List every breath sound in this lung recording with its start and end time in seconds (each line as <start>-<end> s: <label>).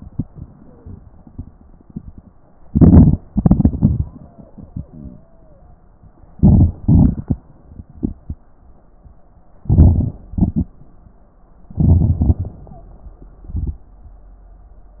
0.59-1.02 s: wheeze
2.67-3.17 s: inhalation
3.28-4.06 s: exhalation
4.19-4.49 s: wheeze
4.89-5.66 s: stridor
6.37-6.75 s: inhalation
6.83-7.38 s: exhalation
9.66-10.21 s: inhalation
9.66-10.21 s: crackles
10.34-10.75 s: exhalation
11.82-12.22 s: inhalation
12.20-12.55 s: exhalation
12.71-12.95 s: wheeze